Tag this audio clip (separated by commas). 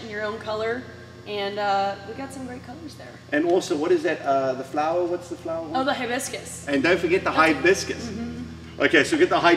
Speech